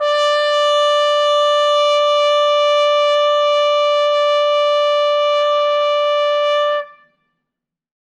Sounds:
music, musical instrument, brass instrument, trumpet

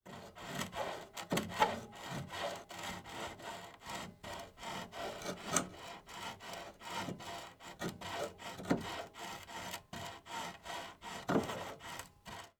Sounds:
tools, sawing

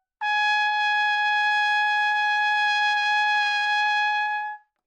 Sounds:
brass instrument, musical instrument, music, trumpet

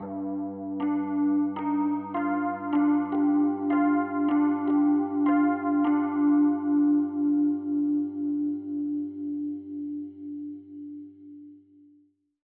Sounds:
keyboard (musical), musical instrument, piano, music

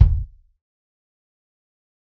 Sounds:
drum, percussion, bass drum, music, musical instrument

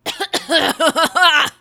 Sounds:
respiratory sounds, cough

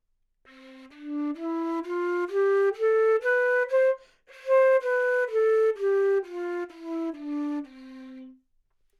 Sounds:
musical instrument, wind instrument, music

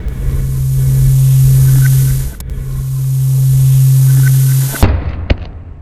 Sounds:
boom, explosion

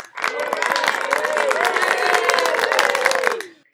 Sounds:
cheering, applause, human group actions

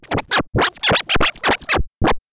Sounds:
music, scratching (performance technique), musical instrument

